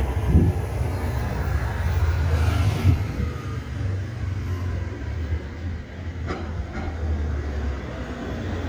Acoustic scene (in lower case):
residential area